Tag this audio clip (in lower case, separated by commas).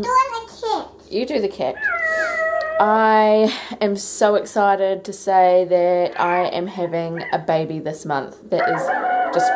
child speech, speech, inside a small room